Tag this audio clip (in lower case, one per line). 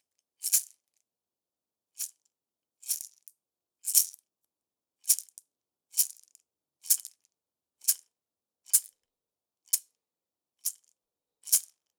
rattle (instrument)
percussion
musical instrument
music